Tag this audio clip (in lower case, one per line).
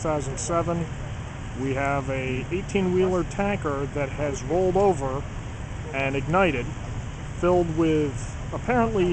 speech